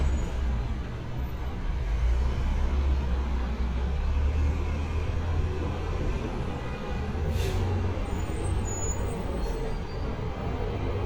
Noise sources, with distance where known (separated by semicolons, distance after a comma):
large-sounding engine; car horn, far